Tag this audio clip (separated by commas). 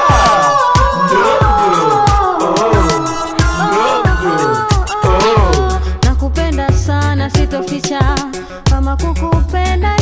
Music